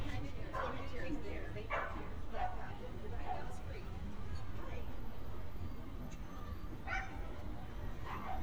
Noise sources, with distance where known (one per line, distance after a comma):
dog barking or whining, near